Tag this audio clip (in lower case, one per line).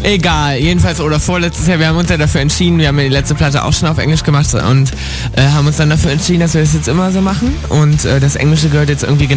speech
music